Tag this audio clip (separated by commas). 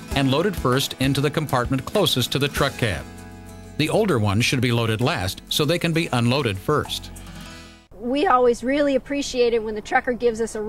Speech, Music